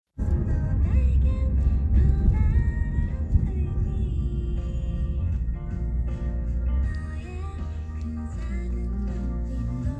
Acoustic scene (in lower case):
car